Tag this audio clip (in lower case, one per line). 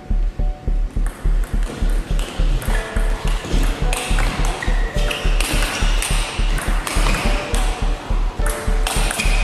playing table tennis